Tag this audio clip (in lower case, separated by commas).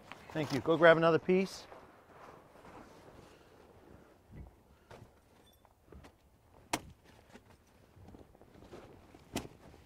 speech